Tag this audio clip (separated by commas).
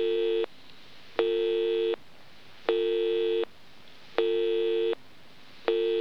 Telephone, Alarm